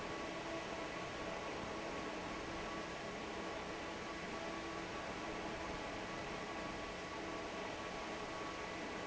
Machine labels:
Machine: fan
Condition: normal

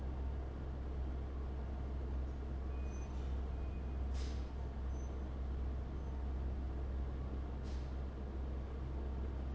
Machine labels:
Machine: fan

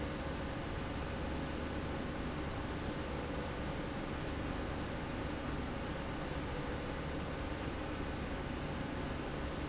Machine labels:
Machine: slide rail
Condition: normal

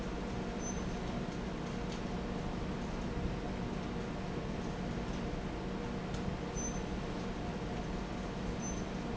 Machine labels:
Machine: fan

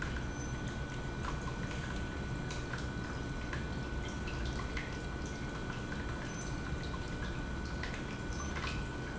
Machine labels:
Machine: pump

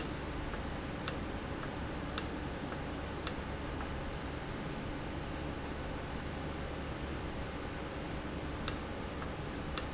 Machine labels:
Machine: valve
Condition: normal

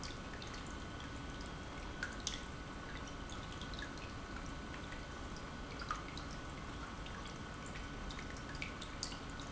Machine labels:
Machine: pump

